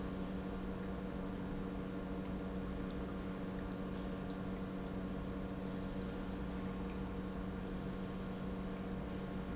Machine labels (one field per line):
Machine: pump